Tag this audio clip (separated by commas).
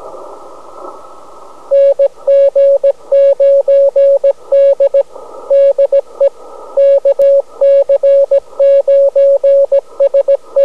Sound effect